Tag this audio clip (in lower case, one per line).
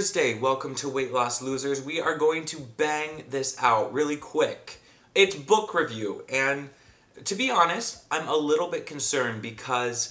speech